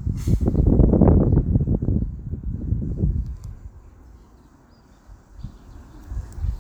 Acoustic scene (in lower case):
park